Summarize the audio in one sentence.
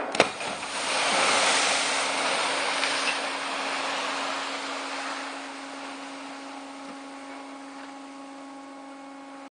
An object falls into water and it leads into a small motor running.